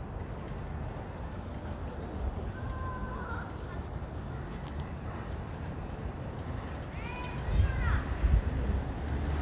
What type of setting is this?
residential area